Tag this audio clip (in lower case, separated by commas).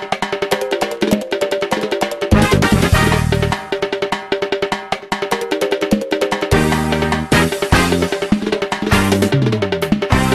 traditional music, music